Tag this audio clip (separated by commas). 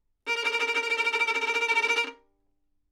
Bowed string instrument, Musical instrument, Music